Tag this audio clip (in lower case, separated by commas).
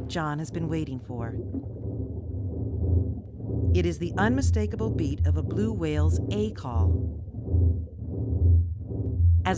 speech